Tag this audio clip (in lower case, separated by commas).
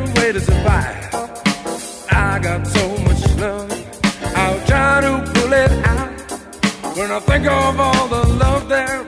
music